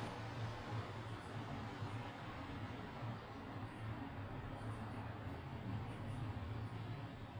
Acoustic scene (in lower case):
residential area